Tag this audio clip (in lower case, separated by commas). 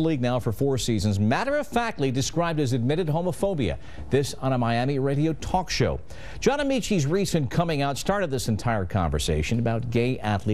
speech